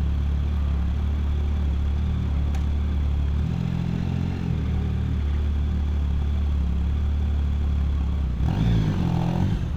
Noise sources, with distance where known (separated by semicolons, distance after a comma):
engine of unclear size, near